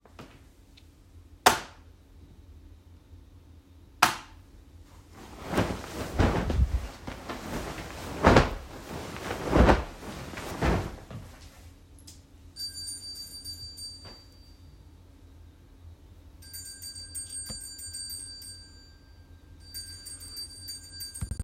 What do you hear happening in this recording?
I first turned the light one and off, then I made my bed and third I rang a bell. All while the phone was statically positioned.